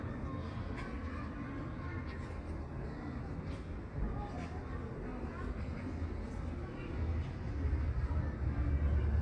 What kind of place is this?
park